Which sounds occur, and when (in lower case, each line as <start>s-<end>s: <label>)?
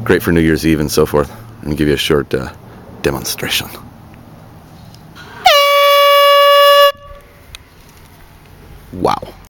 0.0s-1.2s: man speaking
0.0s-9.4s: background noise
1.6s-2.5s: man speaking
3.0s-3.8s: man speaking
4.8s-5.0s: generic impact sounds
5.1s-5.4s: generic impact sounds
5.4s-7.3s: truck horn
7.4s-7.6s: generic impact sounds
8.1s-8.3s: generic impact sounds
8.9s-9.3s: man speaking